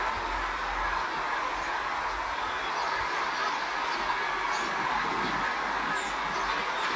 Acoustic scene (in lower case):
park